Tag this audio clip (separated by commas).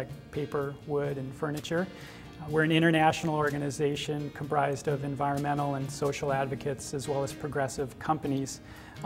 Speech, Music